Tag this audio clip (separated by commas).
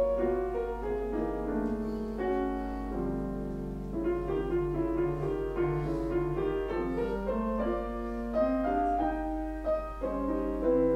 Music